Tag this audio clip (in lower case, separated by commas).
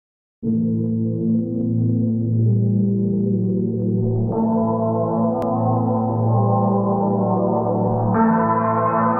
ambient music